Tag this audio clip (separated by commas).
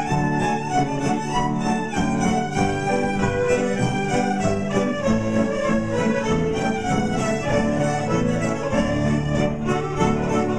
Musical instrument, Music, Violin